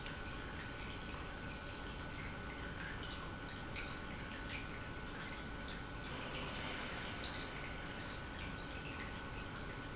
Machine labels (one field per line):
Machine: pump